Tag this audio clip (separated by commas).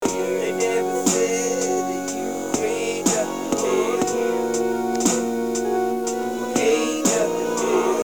Music, Keyboard (musical), Piano, Musical instrument, Human voice